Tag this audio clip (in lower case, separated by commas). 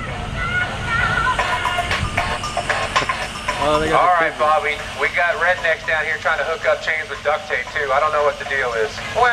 speech, vehicle, car, music